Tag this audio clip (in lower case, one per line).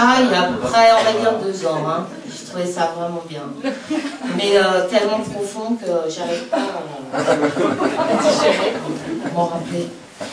speech